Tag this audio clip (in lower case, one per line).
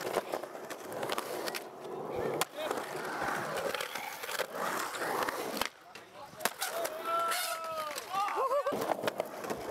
skateboarding
skateboard
speech